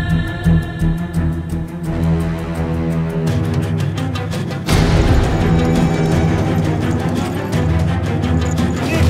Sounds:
Speech, Music

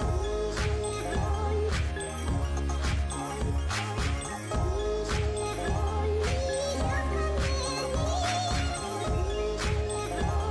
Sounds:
Music

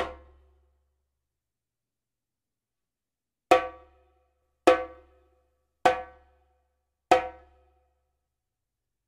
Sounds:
playing djembe

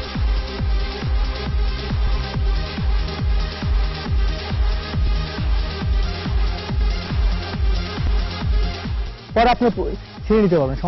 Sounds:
Television, Speech, Music

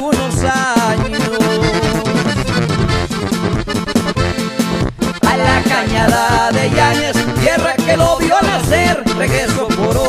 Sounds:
Music, Music of Latin America

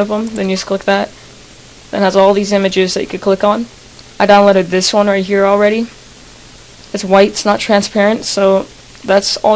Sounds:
Speech

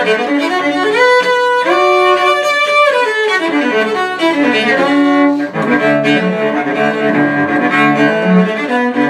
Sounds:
Country, Musical instrument, Music, Violin, Cello

